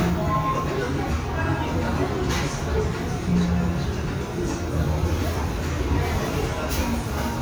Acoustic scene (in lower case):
restaurant